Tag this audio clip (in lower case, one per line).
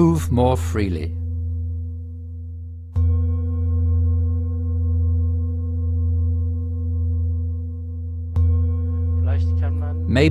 singing bowl